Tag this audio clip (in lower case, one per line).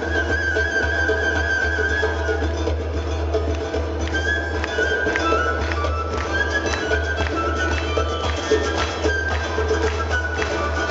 orchestra
soundtrack music
music